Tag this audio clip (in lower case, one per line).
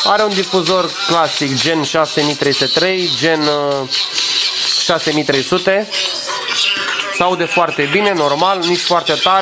speech